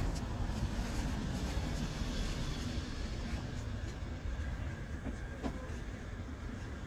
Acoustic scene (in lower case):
residential area